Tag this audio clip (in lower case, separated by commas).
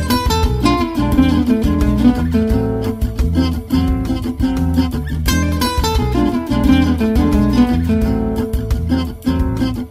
music, musical instrument, plucked string instrument, guitar